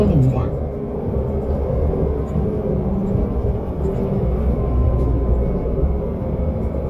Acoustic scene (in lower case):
bus